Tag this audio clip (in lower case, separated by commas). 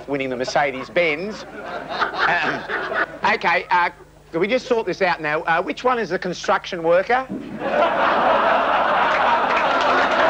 speech